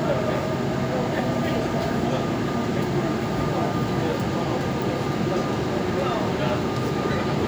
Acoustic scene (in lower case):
subway train